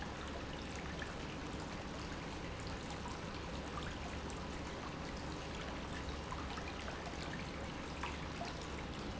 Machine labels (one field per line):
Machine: pump